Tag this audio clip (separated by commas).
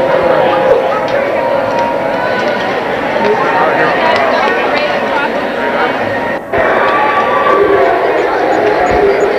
Speech